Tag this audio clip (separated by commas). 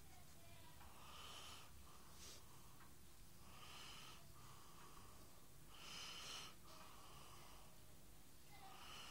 Silence